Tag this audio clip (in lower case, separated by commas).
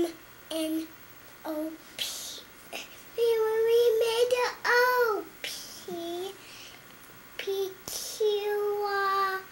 speech